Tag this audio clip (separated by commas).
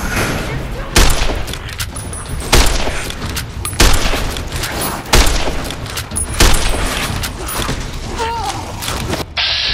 Speech